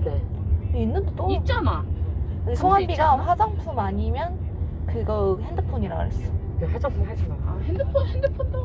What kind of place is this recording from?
car